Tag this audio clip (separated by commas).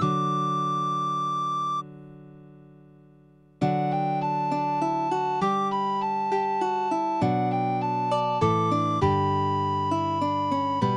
Music